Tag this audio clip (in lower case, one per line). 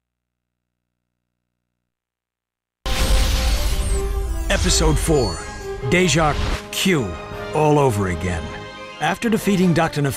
speech
music